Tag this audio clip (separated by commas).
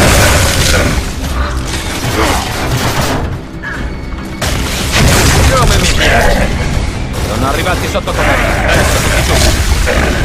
Speech, Music